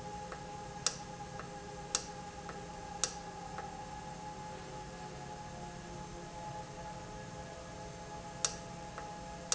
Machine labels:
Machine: valve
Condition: normal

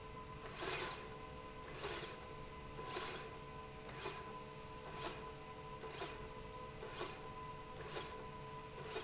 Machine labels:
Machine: slide rail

